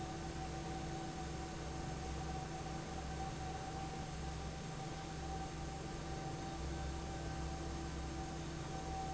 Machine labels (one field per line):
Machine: fan